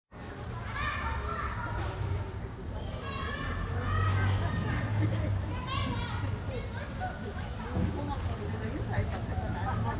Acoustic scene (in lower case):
residential area